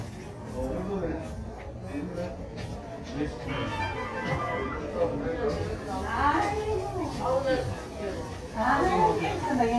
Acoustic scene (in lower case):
crowded indoor space